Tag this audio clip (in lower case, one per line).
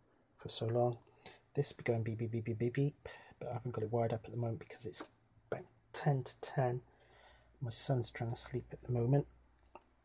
speech